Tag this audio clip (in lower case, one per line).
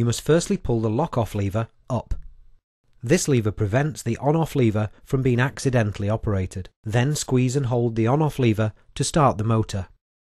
speech